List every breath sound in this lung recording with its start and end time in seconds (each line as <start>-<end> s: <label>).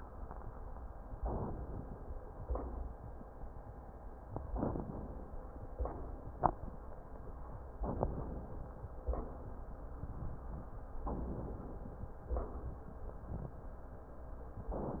1.10-1.98 s: inhalation
4.54-5.41 s: inhalation
7.80-8.67 s: inhalation
11.01-11.88 s: inhalation